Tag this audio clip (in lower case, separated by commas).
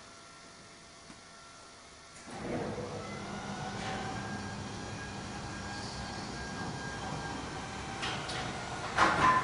sliding door